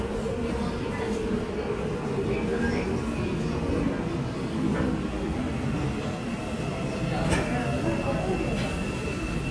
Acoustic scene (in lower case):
subway station